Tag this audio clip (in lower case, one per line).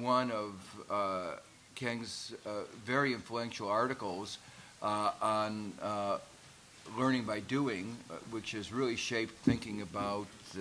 speech